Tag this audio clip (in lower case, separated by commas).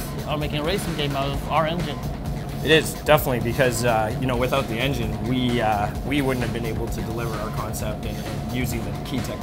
speech, music